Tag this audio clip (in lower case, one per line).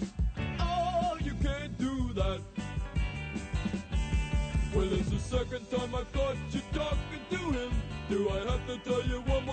music